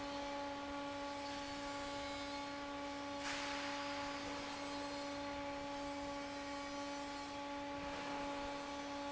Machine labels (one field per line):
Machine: fan